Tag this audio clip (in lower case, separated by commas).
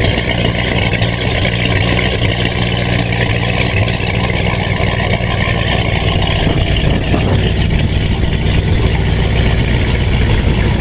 engine, medium engine (mid frequency), vehicle, idling, heavy engine (low frequency)